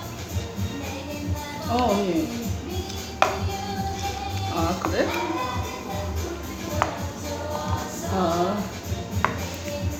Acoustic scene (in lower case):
restaurant